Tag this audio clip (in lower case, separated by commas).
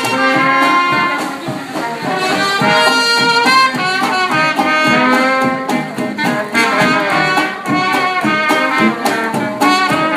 speech, music